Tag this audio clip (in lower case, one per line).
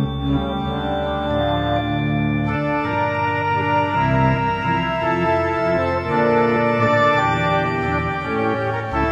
playing electronic organ